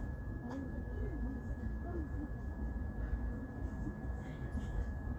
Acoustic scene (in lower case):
park